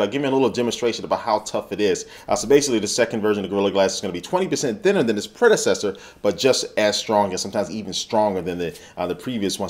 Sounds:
Speech

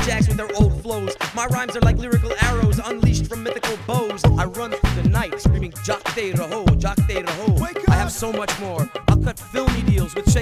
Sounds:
Music, Speech

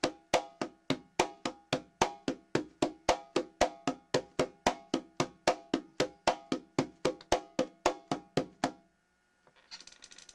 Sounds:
playing congas

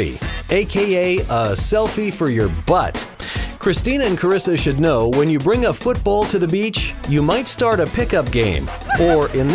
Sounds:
Speech, Music

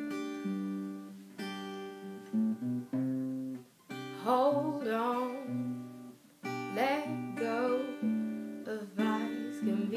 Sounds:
Music, Singing, inside a small room

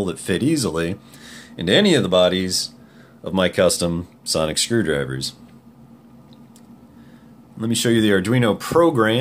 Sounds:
Speech

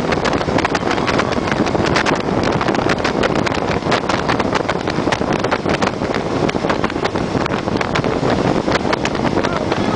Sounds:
Speech

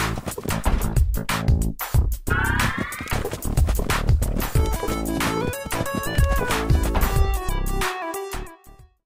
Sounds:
Clip-clop, Animal, Horse, Music

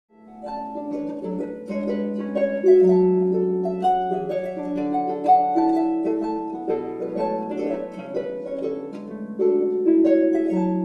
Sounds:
playing harp

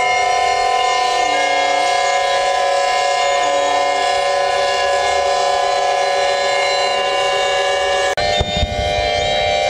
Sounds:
Siren

